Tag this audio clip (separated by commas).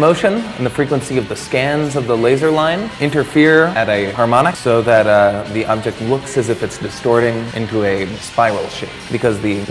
Speech, Music